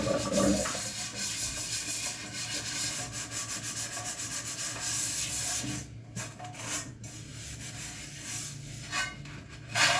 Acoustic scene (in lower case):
kitchen